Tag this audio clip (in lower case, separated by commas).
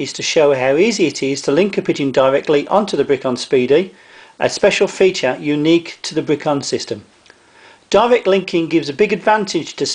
speech